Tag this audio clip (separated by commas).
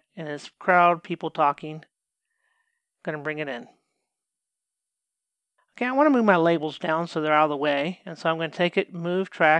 Speech